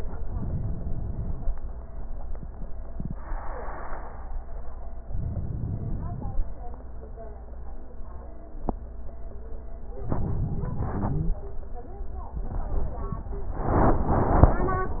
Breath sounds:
Inhalation: 5.11-6.39 s, 10.08-11.36 s

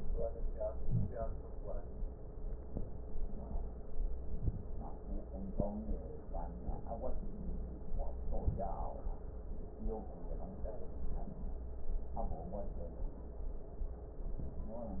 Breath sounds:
Inhalation: 0.78-1.26 s, 4.20-4.69 s, 8.25-8.74 s
Wheeze: 0.78-1.26 s

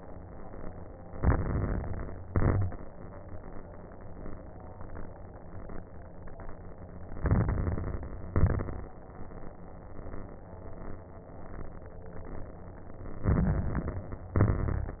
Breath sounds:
Inhalation: 1.08-2.20 s, 7.14-8.26 s, 13.22-14.35 s
Exhalation: 2.22-2.85 s, 8.32-8.95 s, 14.37-14.99 s
Crackles: 1.08-2.20 s, 2.22-2.85 s, 7.14-8.26 s, 8.32-8.95 s, 13.22-14.35 s, 14.37-14.99 s

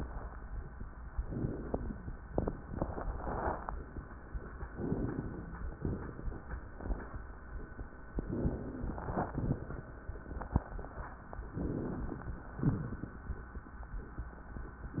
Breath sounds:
Inhalation: 1.18-2.09 s, 4.76-5.67 s, 8.25-9.17 s, 11.57-12.28 s
Exhalation: 5.81-6.72 s, 9.24-9.87 s, 12.60-13.30 s

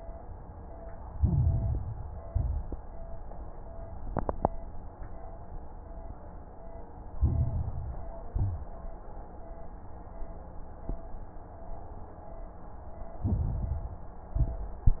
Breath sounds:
Inhalation: 1.02-2.16 s, 7.11-8.24 s, 13.17-14.31 s
Exhalation: 2.22-2.85 s, 8.27-8.89 s, 14.35-14.97 s
Crackles: 1.02-2.16 s, 2.22-2.85 s, 7.11-8.24 s, 8.27-8.89 s, 13.17-14.31 s, 14.35-14.97 s

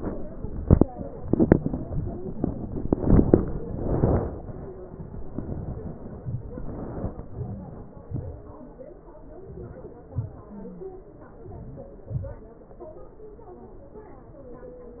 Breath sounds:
Inhalation: 7.33-7.97 s, 9.52-10.07 s, 11.45-12.06 s
Exhalation: 8.12-8.61 s, 10.19-10.60 s, 12.12-12.49 s

